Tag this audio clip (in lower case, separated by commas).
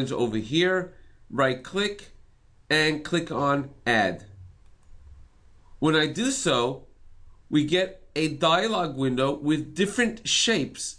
speech